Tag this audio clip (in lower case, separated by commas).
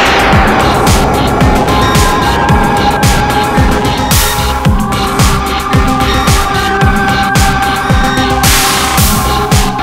music, sound effect, rustle